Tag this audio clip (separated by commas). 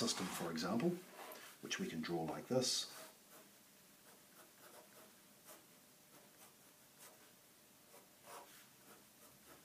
Speech, Writing